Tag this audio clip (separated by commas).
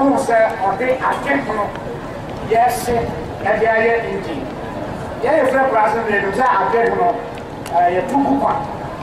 Narration, man speaking, Speech